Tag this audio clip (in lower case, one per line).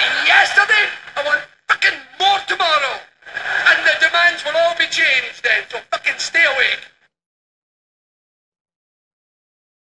male speech
speech